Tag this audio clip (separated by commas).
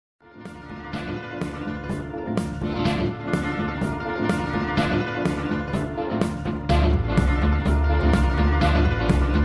Music